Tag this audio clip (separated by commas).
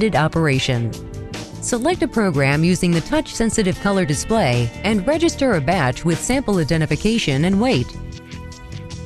Speech, Music